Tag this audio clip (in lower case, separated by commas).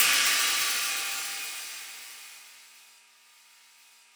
music, hi-hat, musical instrument, percussion, cymbal